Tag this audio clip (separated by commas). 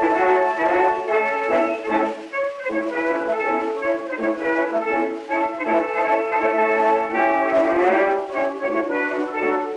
Blues, Music